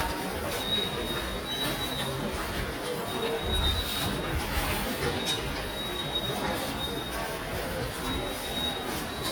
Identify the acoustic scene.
subway station